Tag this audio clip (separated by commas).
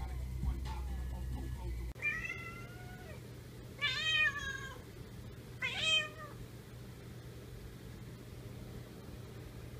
cat caterwauling